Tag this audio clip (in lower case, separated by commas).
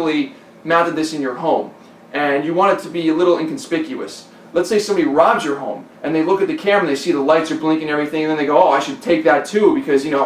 inside a small room, speech